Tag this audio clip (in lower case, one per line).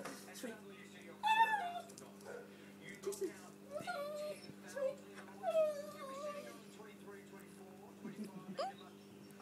pets
speech
animal